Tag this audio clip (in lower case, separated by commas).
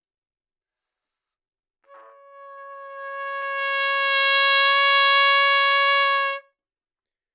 music, brass instrument, trumpet, musical instrument